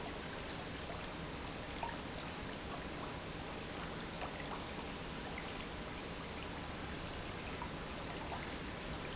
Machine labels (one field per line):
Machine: pump